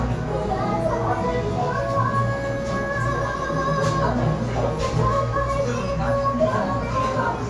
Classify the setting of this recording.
cafe